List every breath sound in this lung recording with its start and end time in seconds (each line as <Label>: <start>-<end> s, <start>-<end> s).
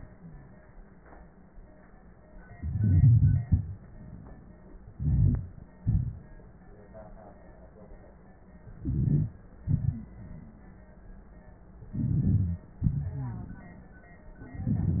Inhalation: 2.48-3.42 s, 4.94-5.65 s, 8.68-9.40 s, 11.84-12.69 s, 14.39-15.00 s
Exhalation: 3.42-3.88 s, 5.79-6.53 s, 9.61-10.18 s, 12.75-14.09 s
Wheeze: 12.85-13.71 s
Crackles: 2.48-3.42 s, 3.43-3.88 s, 4.94-5.65 s, 5.79-6.53 s, 8.68-9.40 s, 9.61-10.18 s, 11.84-12.69 s, 14.39-15.00 s